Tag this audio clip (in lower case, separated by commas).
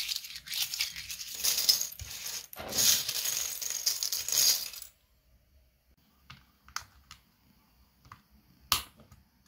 typing on computer keyboard